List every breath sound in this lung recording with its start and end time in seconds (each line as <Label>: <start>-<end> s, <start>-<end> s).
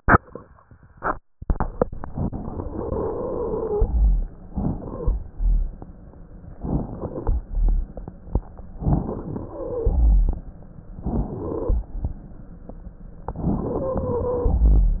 Inhalation: 2.69-3.85 s, 4.45-5.16 s, 6.54-7.37 s, 8.72-10.52 s, 10.99-11.80 s, 13.28-14.62 s
Wheeze: 2.69-3.85 s, 10.99-11.62 s
Stridor: 13.66-14.62 s